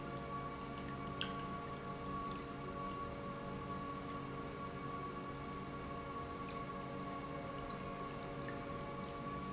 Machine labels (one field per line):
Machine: pump